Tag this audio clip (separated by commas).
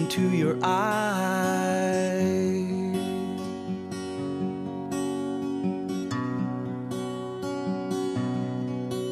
Music